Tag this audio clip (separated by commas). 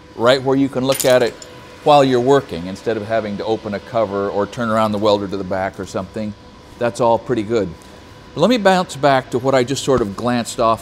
arc welding